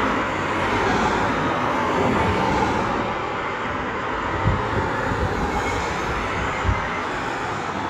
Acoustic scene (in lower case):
street